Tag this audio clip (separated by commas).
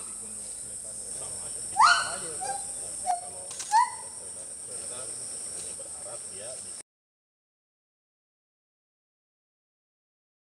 gibbon howling